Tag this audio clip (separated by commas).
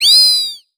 Animal